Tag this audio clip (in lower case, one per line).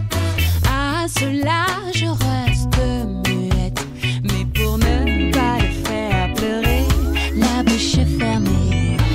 pop music
music